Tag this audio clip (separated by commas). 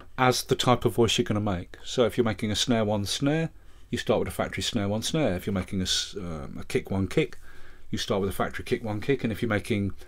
Speech